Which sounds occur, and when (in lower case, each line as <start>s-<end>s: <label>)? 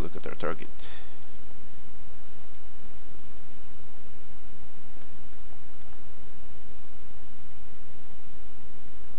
0.0s-1.0s: male speech
0.0s-9.1s: mechanisms
0.0s-9.1s: video game sound